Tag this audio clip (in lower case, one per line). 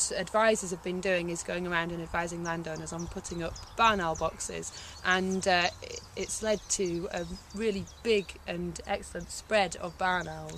speech